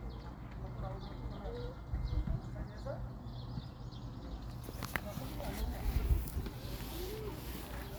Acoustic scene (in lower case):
park